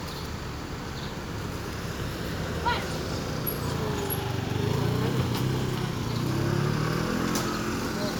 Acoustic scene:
residential area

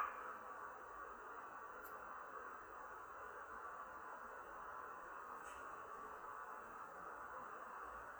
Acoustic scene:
elevator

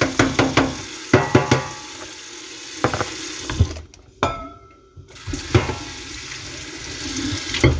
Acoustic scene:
kitchen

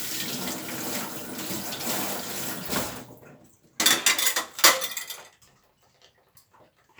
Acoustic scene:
kitchen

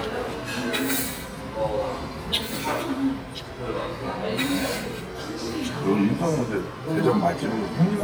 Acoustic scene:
crowded indoor space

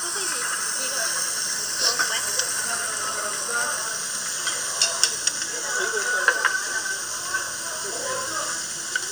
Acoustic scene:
restaurant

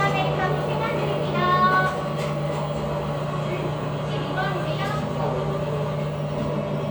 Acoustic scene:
cafe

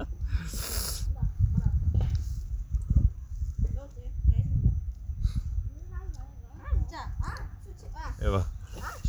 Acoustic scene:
park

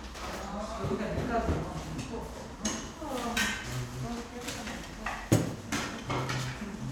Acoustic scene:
crowded indoor space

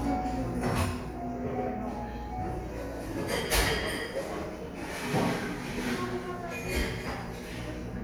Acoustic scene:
cafe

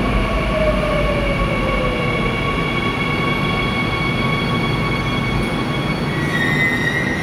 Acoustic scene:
subway station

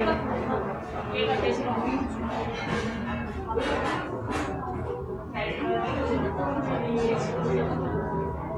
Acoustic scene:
cafe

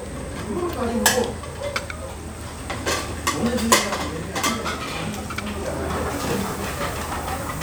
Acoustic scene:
restaurant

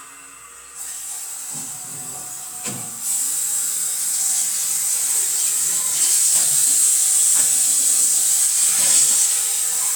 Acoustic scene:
restroom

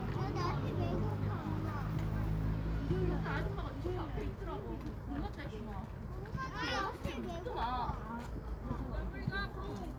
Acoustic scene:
residential area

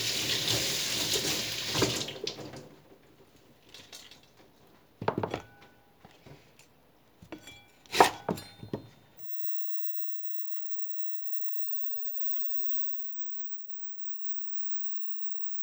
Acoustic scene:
kitchen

